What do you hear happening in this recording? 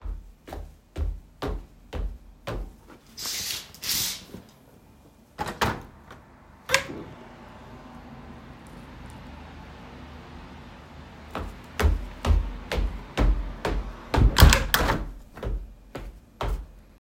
I walked to the window, moved the curtains, opened the window, walked again and then closed the window